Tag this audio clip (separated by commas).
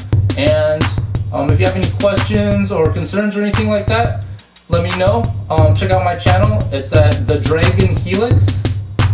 Speech, Music